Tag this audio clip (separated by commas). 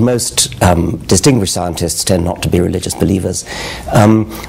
Speech